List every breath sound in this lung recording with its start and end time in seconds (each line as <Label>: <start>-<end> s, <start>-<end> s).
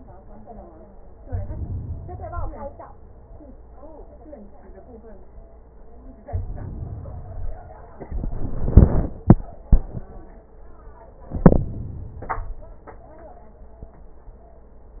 Inhalation: 1.21-2.85 s, 6.27-7.70 s, 11.20-12.71 s